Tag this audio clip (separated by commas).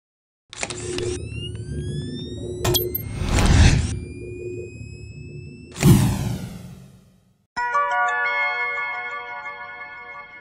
Music